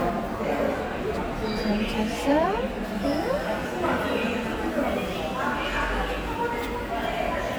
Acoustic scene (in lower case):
subway station